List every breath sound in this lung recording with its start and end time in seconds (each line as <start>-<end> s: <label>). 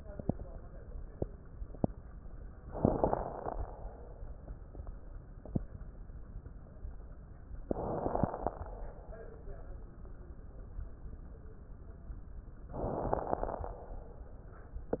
2.66-3.74 s: inhalation
2.66-3.74 s: crackles
7.70-8.79 s: inhalation
7.70-8.79 s: crackles
12.73-13.81 s: inhalation
12.73-13.81 s: crackles